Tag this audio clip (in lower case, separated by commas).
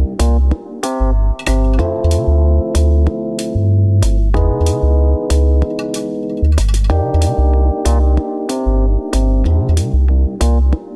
music